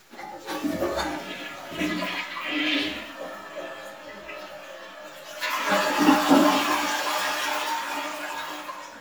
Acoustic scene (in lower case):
restroom